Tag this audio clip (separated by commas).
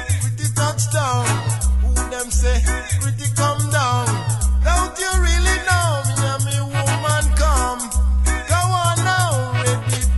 Music, Reggae